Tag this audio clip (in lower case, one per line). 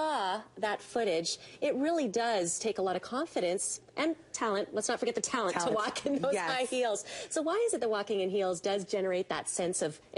speech